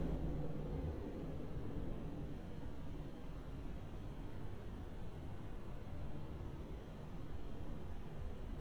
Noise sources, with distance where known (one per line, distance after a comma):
background noise